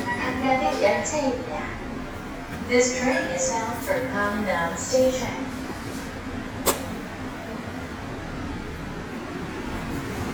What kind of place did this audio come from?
subway station